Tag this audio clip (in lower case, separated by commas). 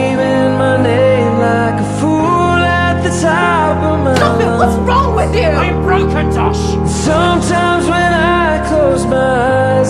speech, music